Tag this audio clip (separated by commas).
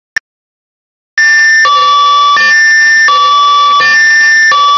Siren